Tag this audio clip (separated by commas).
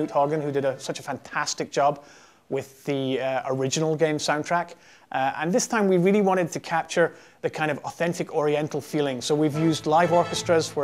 Speech, Music